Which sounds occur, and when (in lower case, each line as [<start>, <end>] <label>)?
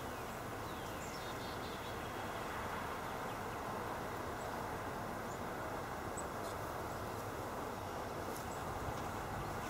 [0.00, 0.34] bird vocalization
[0.00, 9.65] background noise
[0.00, 9.65] motor vehicle (road)
[0.58, 2.37] bird vocalization
[3.03, 3.57] bird vocalization
[4.45, 4.66] bird vocalization
[5.30, 5.42] bird vocalization
[6.12, 6.23] bird vocalization
[6.43, 6.58] generic impact sounds
[7.74, 8.14] bird vocalization
[8.39, 8.50] generic impact sounds
[8.97, 9.05] generic impact sounds
[9.55, 9.65] generic impact sounds